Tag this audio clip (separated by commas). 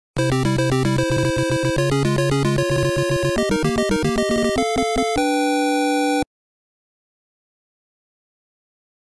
Music